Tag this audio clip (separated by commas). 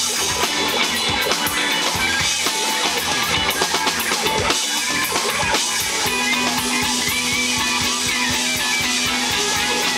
Music